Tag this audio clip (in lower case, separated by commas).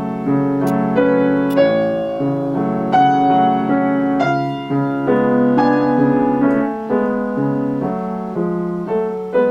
music